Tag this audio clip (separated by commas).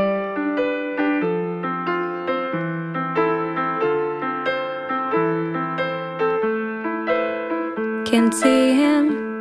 Music